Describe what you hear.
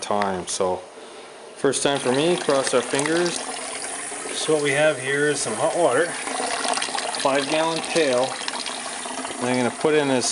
A man speaks and water slowly flows